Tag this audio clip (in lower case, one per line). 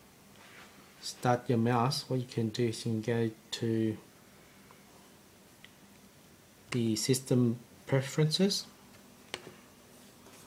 speech